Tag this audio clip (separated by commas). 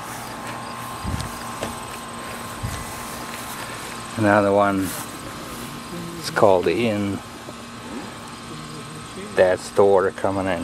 Speech